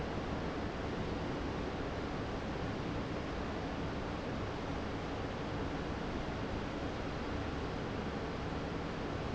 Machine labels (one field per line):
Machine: fan